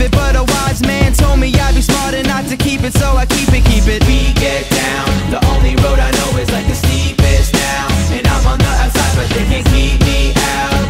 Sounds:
music

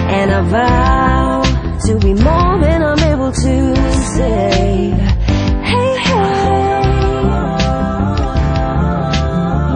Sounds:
music

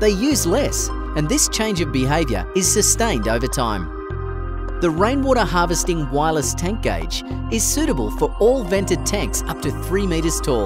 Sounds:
music
speech

